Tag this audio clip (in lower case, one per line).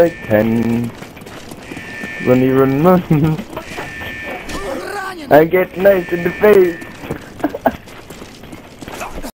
speech
run